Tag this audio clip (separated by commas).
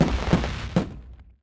Fireworks, Explosion